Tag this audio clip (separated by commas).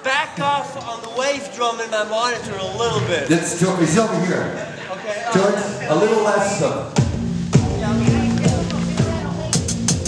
Music, Speech